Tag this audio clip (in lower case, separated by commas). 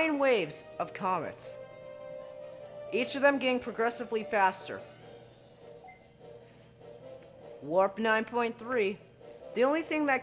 speech